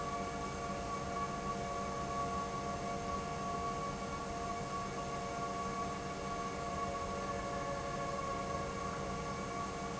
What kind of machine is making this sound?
pump